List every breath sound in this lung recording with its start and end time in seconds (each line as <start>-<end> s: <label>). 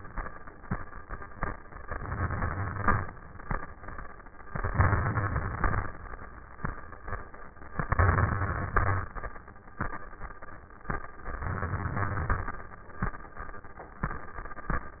1.83-3.11 s: inhalation
1.83-3.11 s: crackles
4.50-5.85 s: inhalation
4.50-5.85 s: crackles
7.80-9.14 s: inhalation
7.80-9.14 s: crackles
11.26-12.61 s: inhalation
11.26-12.61 s: crackles